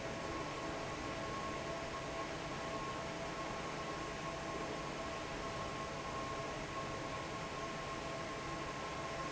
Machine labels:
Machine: fan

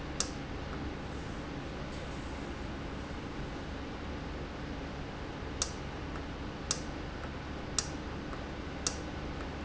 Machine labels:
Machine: valve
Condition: normal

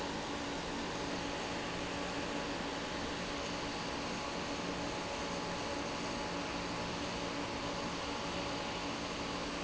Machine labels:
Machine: fan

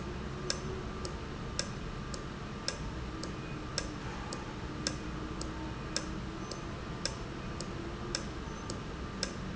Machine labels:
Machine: valve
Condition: normal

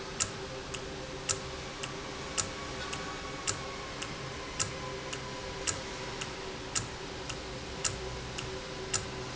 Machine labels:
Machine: valve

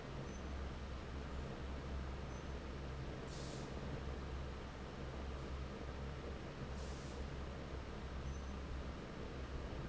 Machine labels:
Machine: fan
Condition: normal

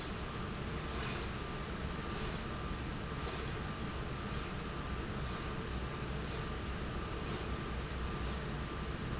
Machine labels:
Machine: slide rail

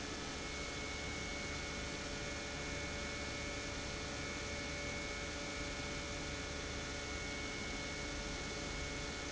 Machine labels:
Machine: pump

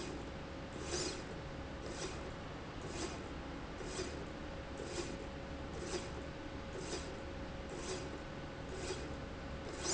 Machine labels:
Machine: slide rail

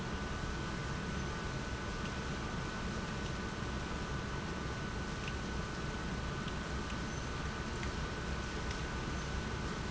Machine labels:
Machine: pump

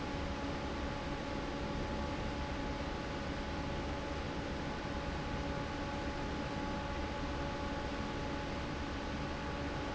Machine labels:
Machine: fan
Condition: normal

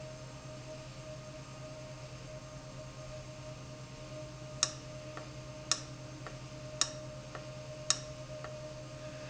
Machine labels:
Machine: valve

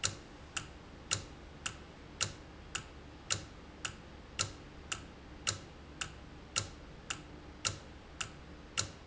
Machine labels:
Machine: valve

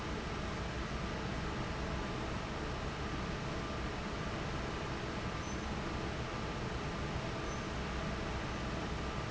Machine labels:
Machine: fan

